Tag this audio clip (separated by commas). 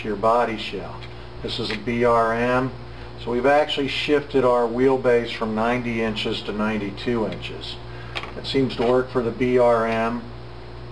Speech